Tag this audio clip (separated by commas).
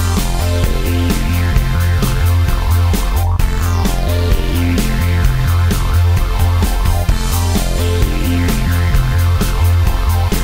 Music